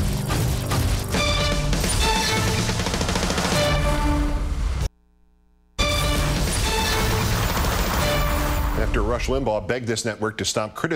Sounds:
Music, Speech

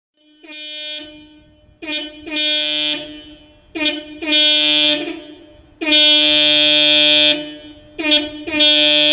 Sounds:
car horn

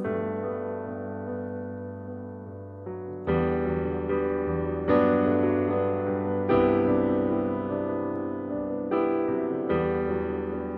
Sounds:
Music

